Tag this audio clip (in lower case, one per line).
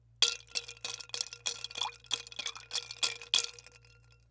liquid